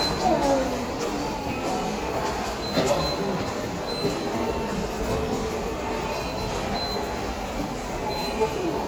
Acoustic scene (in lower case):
subway station